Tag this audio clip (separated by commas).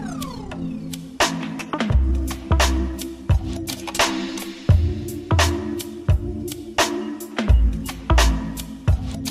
Music, Sound effect